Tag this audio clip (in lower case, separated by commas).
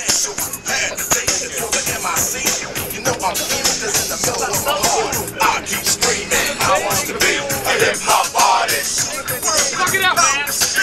speech, music